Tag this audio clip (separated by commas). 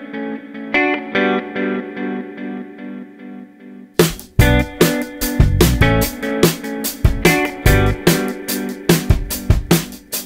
opening or closing drawers